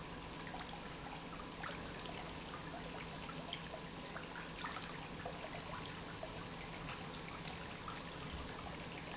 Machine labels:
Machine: pump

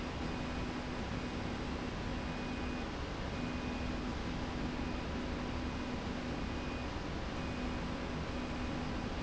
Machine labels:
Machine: slide rail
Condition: normal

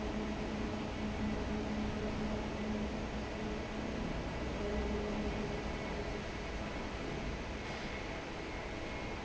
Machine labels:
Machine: fan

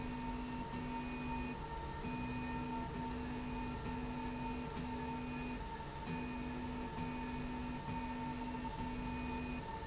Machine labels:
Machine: slide rail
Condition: normal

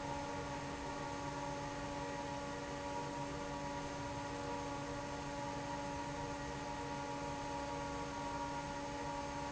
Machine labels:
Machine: fan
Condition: normal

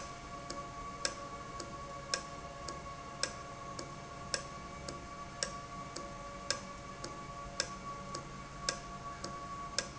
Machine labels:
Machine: valve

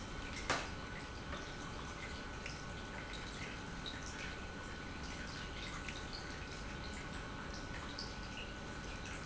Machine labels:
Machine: pump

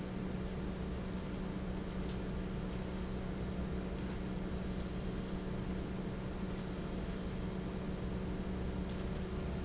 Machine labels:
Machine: fan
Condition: abnormal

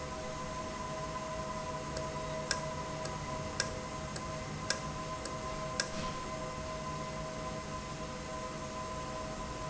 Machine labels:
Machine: valve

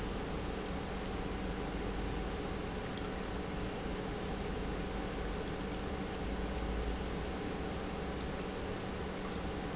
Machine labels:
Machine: pump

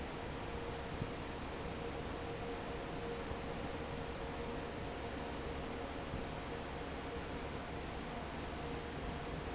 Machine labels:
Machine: fan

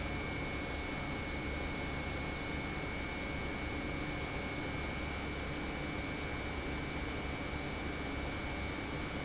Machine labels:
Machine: pump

